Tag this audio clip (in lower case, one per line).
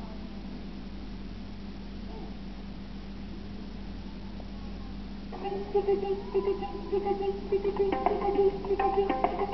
music
radio